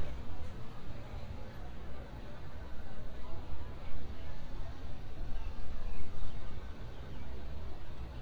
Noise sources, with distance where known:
engine of unclear size, far; person or small group talking, far

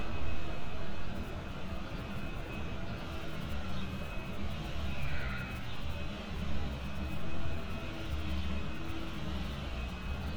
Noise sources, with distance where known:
engine of unclear size

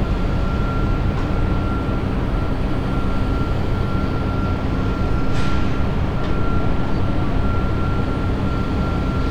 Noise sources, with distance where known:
reverse beeper

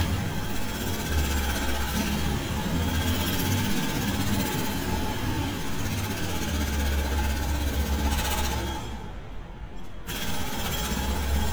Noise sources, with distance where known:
jackhammer, near

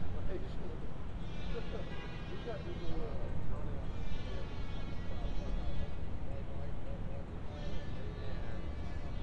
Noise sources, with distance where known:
small or medium rotating saw, far

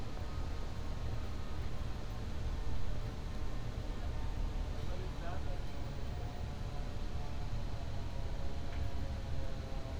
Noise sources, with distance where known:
engine of unclear size, far

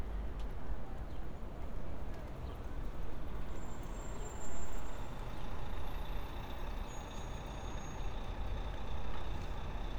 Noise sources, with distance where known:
medium-sounding engine, near

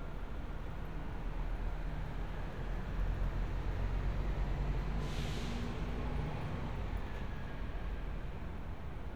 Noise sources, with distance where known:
large-sounding engine

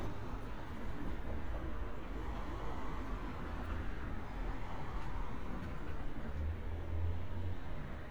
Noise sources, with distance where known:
medium-sounding engine

